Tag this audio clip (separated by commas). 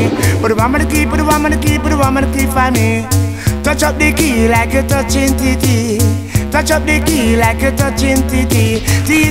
Echo, Music